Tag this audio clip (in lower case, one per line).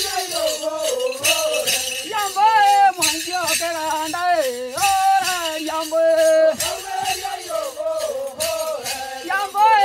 male singing
choir